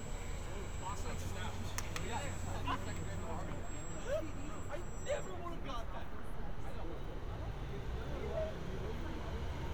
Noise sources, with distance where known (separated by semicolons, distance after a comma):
medium-sounding engine; person or small group talking, near